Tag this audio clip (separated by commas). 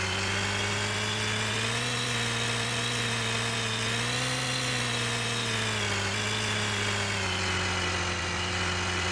Car, Vehicle